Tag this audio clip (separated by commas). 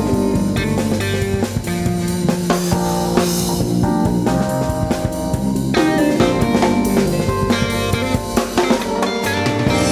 Music